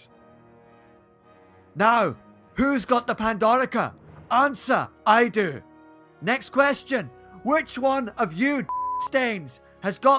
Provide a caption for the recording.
A person having a speech